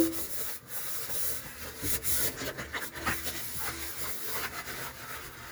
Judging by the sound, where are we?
in a kitchen